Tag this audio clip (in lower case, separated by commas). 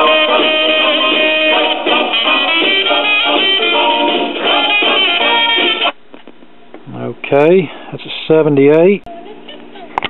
music, speech